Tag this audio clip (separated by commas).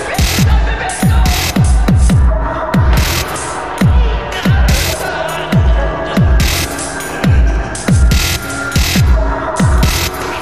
Music, Dubstep